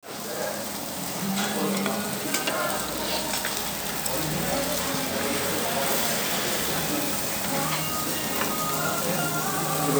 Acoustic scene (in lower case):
restaurant